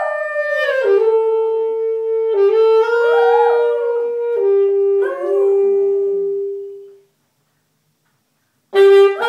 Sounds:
yip, whimper (dog), music

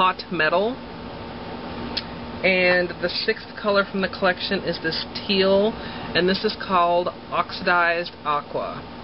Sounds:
speech

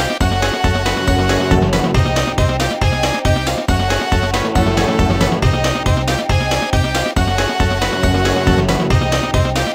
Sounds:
music, video game music

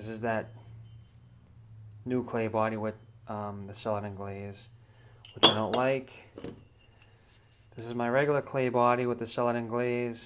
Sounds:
dishes, pots and pans, speech

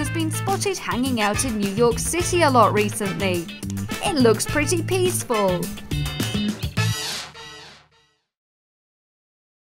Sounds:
speech, music

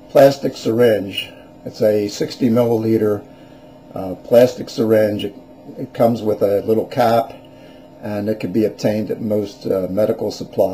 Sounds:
speech

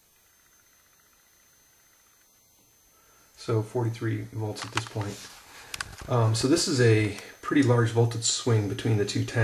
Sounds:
speech, inside a small room

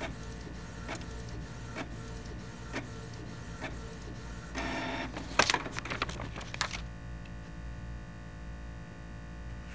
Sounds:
printer printing

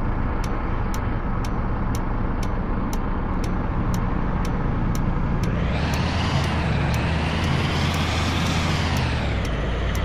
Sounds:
vehicle, truck

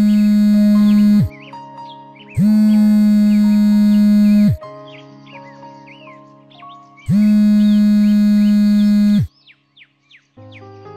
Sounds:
music

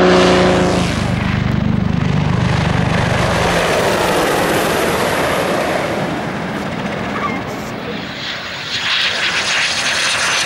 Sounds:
airplane flyby

